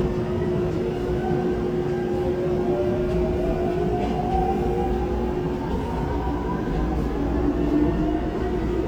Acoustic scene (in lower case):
subway train